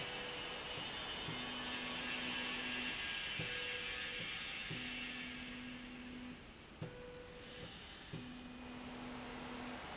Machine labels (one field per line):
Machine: slide rail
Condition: normal